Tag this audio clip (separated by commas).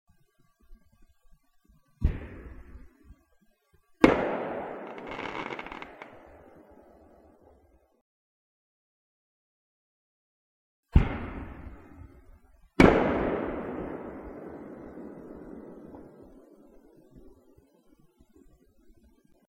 Explosion, Fireworks